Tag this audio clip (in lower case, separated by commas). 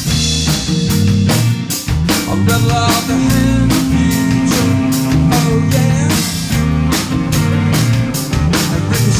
percussion, drum, rimshot, bass drum, drum kit, snare drum